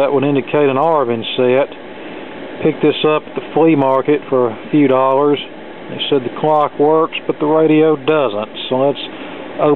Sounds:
Speech

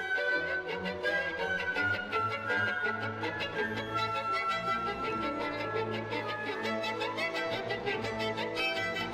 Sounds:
Musical instrument, Music, Violin

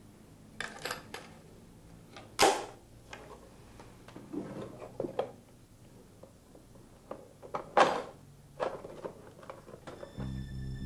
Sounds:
inside a small room

